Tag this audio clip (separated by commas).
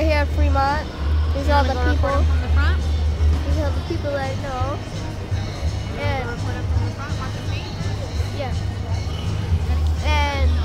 Speech, Music